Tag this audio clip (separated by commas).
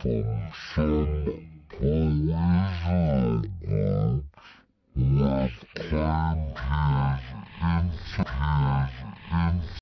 Speech synthesizer